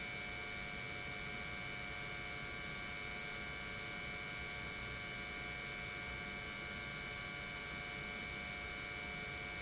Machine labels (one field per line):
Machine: pump